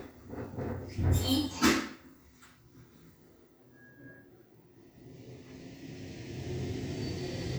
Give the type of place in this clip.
elevator